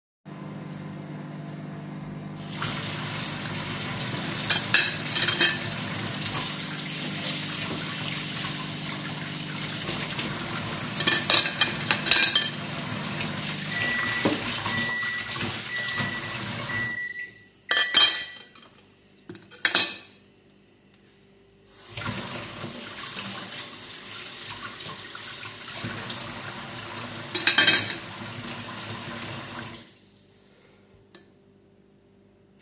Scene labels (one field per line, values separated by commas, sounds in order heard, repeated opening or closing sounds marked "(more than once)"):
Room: kitchen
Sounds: microwave, running water, cutlery and dishes